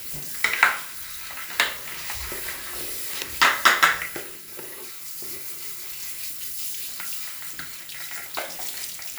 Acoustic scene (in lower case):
restroom